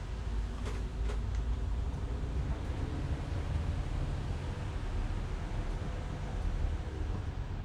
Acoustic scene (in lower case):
bus